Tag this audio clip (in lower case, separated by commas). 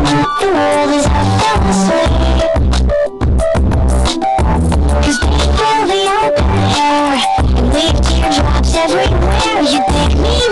music